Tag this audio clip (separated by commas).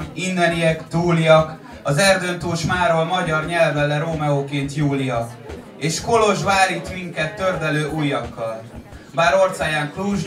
Speech